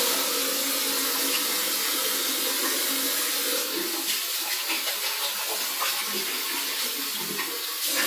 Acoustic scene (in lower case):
restroom